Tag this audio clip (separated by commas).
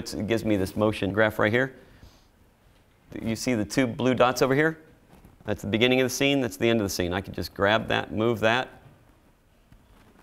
Speech